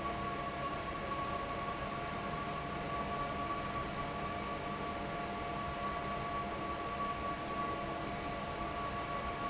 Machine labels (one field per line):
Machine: fan